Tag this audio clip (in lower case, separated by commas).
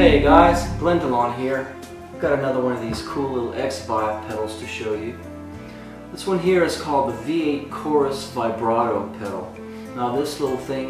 speech, music